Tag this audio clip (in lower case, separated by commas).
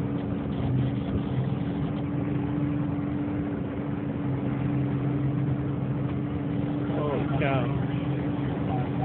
sailing ship, speech